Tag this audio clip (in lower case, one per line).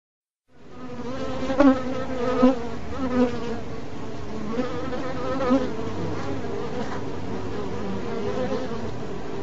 mosquito buzzing